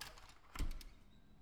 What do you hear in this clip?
window opening